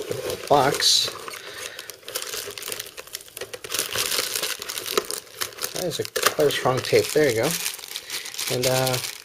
Rustling of packaging with male narration